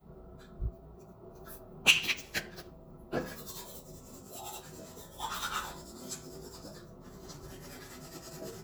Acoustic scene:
restroom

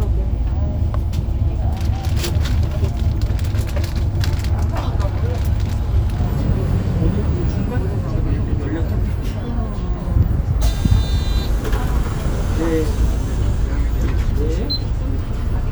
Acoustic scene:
bus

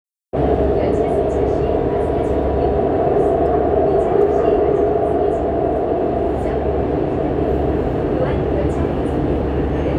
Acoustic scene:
subway train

